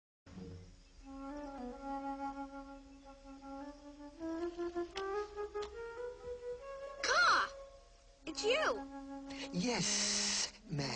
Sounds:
woodwind instrument

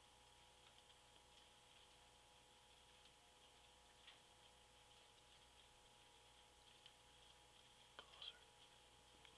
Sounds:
Speech

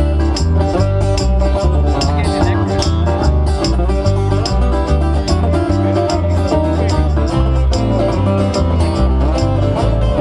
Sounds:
Banjo, Music

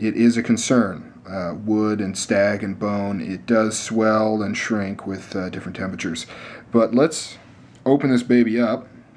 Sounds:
Speech, inside a small room

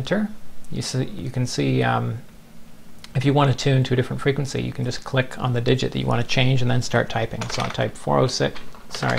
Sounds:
Typing, Speech

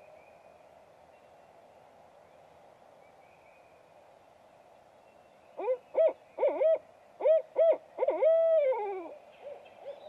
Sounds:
owl hooting

